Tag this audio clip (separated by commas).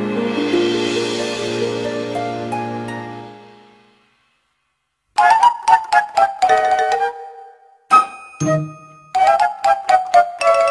Music